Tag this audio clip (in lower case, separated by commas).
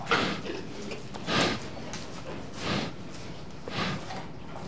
animal, livestock